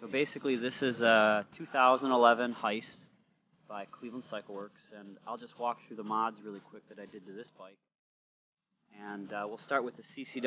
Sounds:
Speech

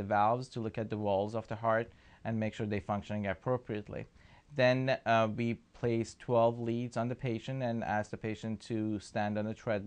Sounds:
Speech

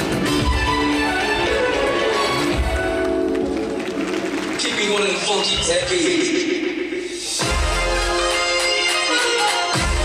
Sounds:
Music, Speech

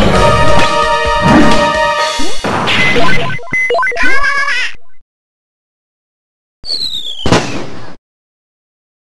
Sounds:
Silence, Music

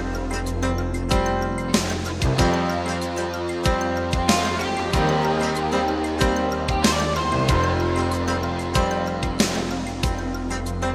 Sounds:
Music

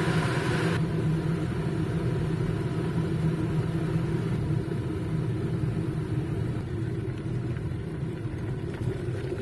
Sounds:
Water

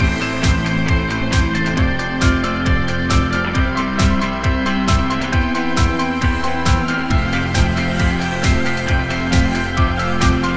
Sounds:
Music

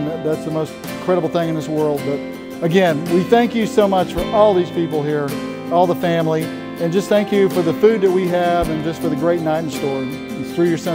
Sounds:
Speech, Music

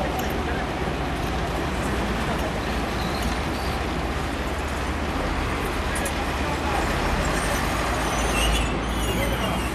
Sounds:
Vehicle

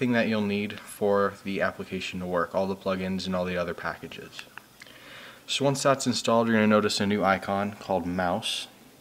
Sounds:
Speech

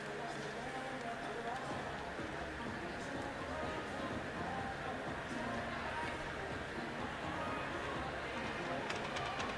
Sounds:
swimming

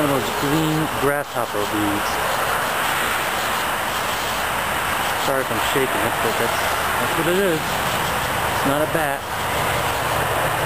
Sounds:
Speech

